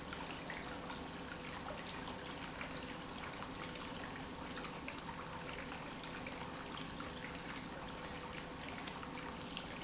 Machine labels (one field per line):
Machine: pump